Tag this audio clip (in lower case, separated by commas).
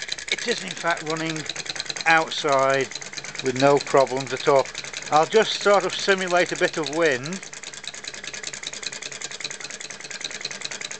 speech